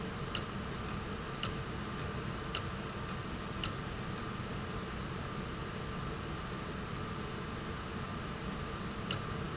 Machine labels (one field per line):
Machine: valve